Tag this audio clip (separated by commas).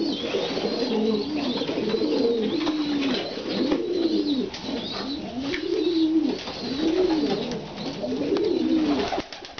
Bird, Coo, Animal